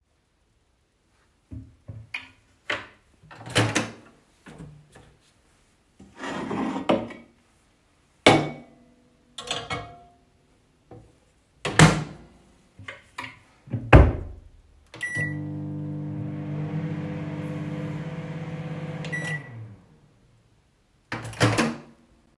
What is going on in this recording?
I opened the kitchen door and moved to the microwave. I opened a drawer, put down a plate, closed the drawer, and then operated the microwave.